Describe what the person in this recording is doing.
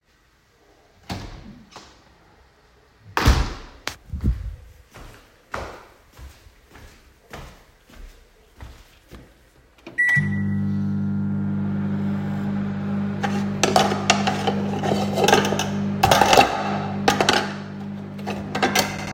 I opened the kitchen door, walked to the microwave oven, turned it on, and started putting the dishes in order.